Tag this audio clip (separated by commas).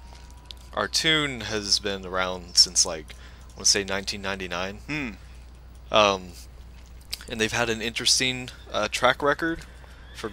Speech